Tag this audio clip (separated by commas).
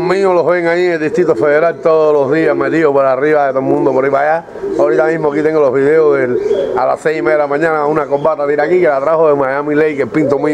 Speech, outside, rural or natural, Pigeon, Bird